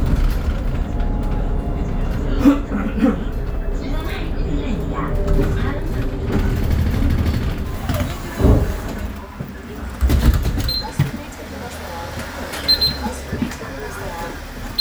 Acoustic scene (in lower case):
bus